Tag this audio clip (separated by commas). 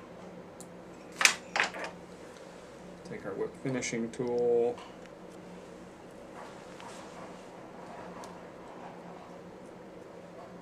Speech